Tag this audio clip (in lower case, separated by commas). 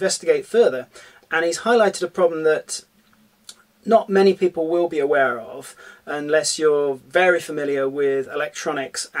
speech